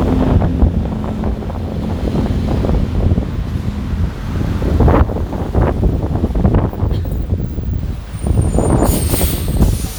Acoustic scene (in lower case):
street